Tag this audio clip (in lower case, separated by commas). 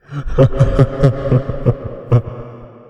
laughter, human voice